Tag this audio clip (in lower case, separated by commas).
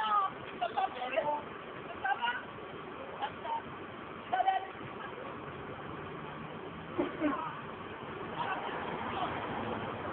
speech, vehicle